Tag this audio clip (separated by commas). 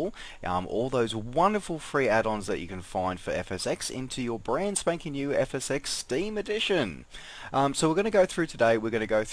Speech